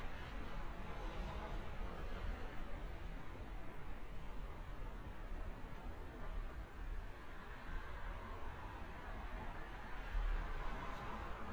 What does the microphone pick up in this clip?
background noise